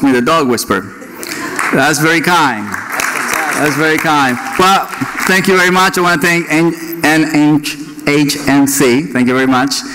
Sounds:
Speech

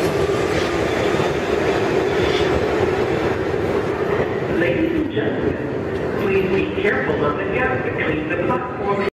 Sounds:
Subway, Rail transport, Train, Speech, Vehicle

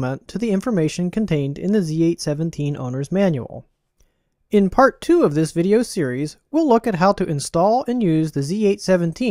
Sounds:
Speech

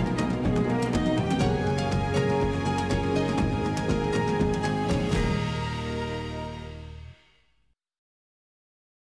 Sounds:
Music

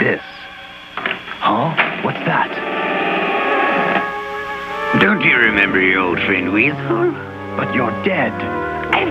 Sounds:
Speech, Music

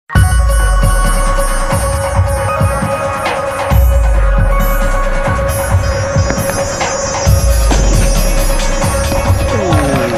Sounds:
Throbbing, Music

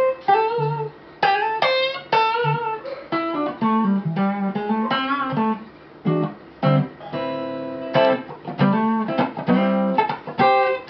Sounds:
Electric guitar, Strum, Music, Guitar, Plucked string instrument, Musical instrument

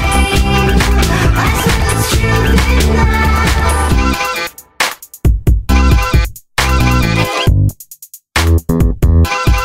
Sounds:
Music

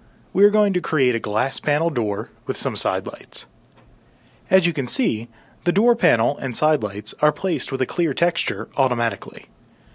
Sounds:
Speech

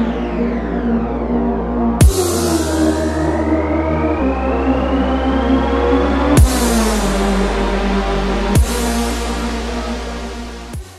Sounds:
Music

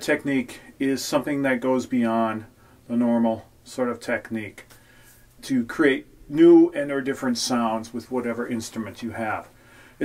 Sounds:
Speech

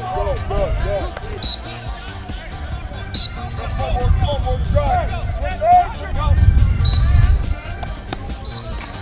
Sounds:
Music, Speech

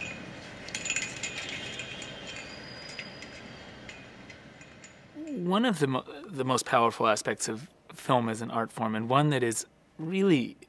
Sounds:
Speech

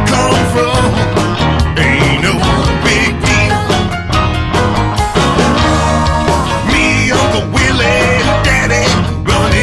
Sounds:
Music

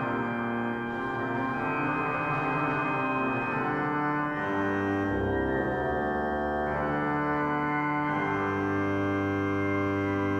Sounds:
Musical instrument, Classical music, Music, Keyboard (musical), Organ

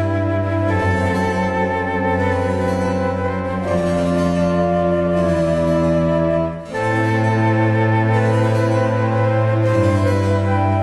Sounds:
New-age music, Classical music, Music

